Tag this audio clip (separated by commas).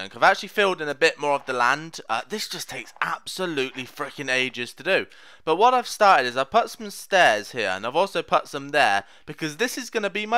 Speech